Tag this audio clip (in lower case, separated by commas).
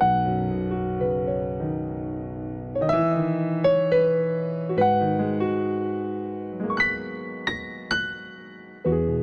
music